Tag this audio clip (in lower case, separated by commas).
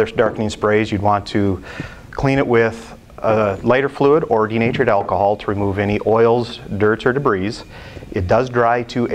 speech